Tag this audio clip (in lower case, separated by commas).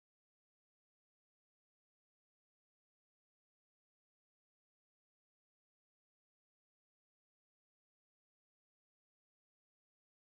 silence